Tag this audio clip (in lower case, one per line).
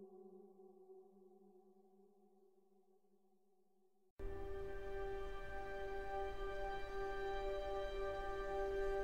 sad music
soundtrack music
music